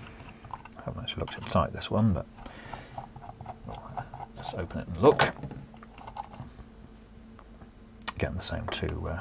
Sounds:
Speech, inside a small room

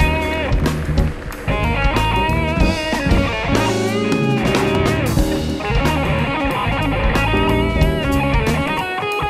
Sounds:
Percussion, Electric guitar, Drum, Music, Brass instrument, Orchestra, Musical instrument

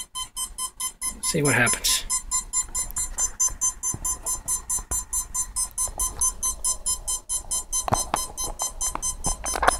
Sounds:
Speech

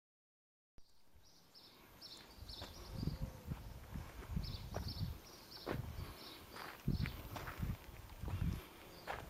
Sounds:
Walk

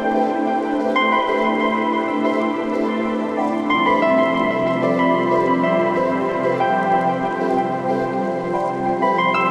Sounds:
Music, Rain on surface

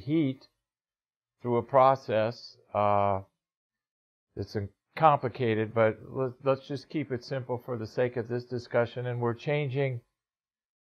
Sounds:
Speech

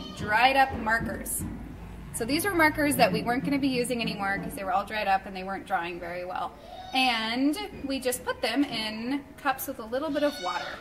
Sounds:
Speech

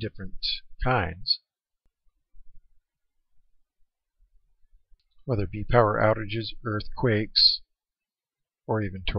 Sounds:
Speech

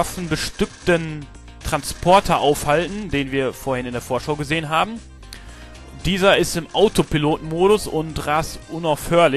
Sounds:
Music, Speech

